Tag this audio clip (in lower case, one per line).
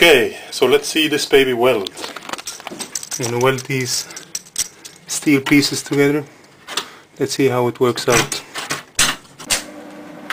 speech